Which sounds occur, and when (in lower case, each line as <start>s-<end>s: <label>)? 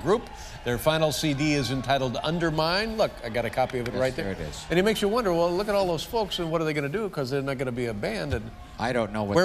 0.0s-0.2s: man speaking
0.0s-9.4s: conversation
0.0s-9.4s: crowd
0.2s-0.6s: breathing
0.6s-3.0s: man speaking
3.1s-8.5s: man speaking
3.6s-3.7s: tap
3.8s-3.9s: tap
8.8s-9.4s: man speaking